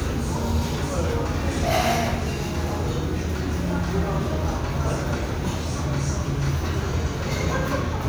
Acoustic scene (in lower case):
restaurant